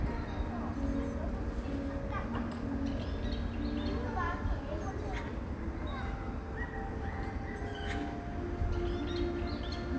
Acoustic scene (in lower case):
park